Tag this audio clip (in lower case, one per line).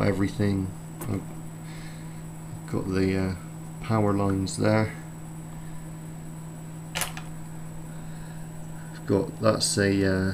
speech